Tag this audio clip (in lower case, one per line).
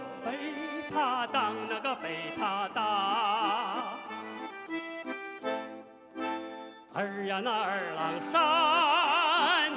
music
male singing